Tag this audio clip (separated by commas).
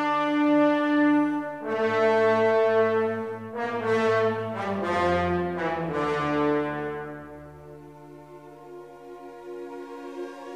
Music